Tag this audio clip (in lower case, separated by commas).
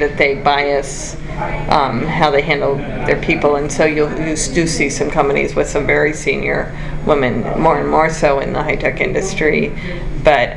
speech